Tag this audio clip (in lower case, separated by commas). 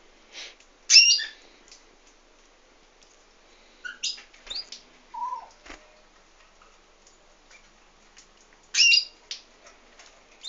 bird, domestic animals